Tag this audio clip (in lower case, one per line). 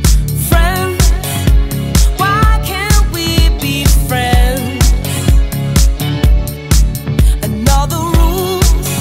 music